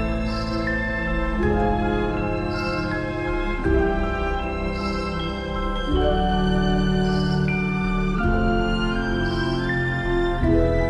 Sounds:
Music, Background music, Soundtrack music

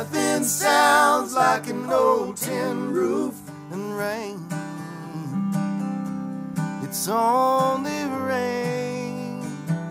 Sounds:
Bluegrass, Country, Music

